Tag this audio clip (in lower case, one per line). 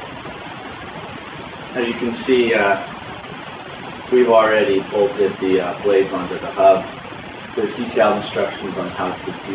speech